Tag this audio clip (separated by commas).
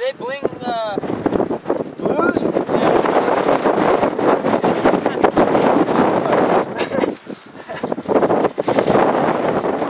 Speech